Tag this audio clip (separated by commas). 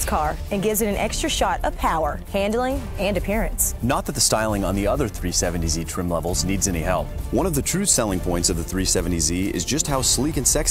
Speech, Music